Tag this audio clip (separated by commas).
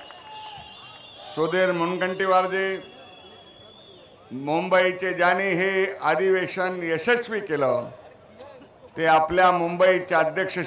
Speech, man speaking